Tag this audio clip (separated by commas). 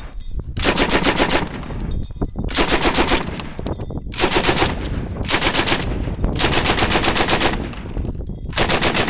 machine gun shooting, Machine gun